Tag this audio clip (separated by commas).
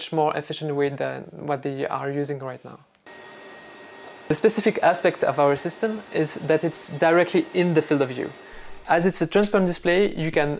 Speech